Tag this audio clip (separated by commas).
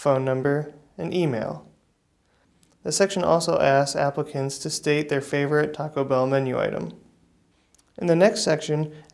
Speech